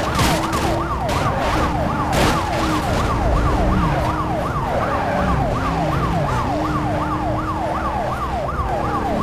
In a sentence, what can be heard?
Police car siren, and vehicles running into things